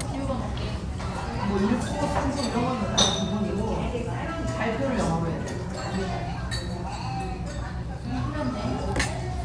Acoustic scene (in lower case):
restaurant